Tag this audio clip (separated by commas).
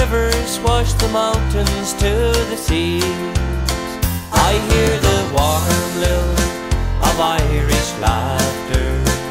Music, Male singing